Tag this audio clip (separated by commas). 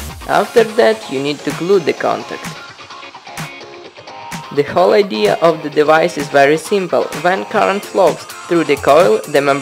Music, Speech